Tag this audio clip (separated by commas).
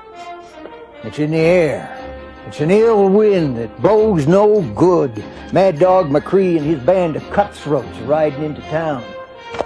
Music, Speech